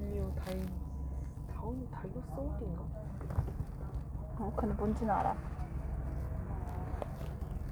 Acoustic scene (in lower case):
car